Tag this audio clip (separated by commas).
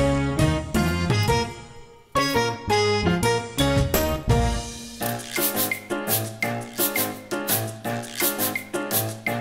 Music, Percussion